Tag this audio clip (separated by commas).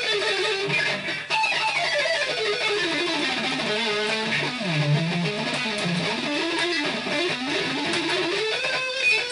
Music, Acoustic guitar, Guitar, Plucked string instrument, Musical instrument